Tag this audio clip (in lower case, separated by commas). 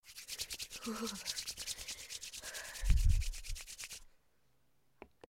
hands